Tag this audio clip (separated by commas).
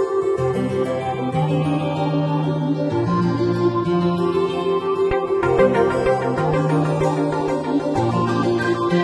Music